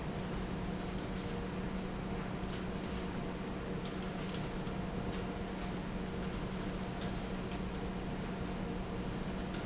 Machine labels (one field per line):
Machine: fan